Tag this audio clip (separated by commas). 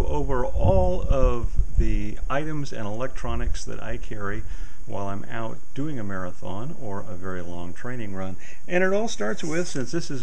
Speech, outside, rural or natural